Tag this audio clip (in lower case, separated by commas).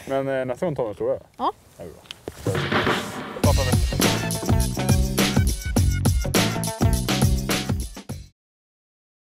speech, music